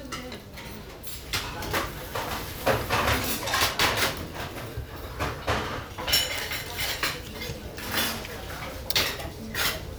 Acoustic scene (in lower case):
restaurant